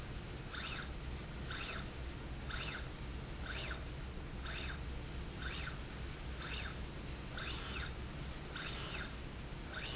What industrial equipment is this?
slide rail